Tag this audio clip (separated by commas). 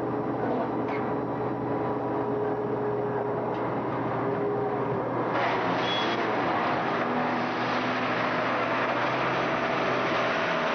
Vehicle